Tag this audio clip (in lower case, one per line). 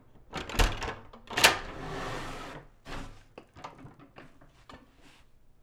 home sounds
sliding door
door